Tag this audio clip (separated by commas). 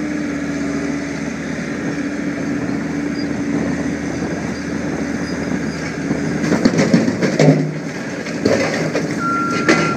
Vehicle, Reversing beeps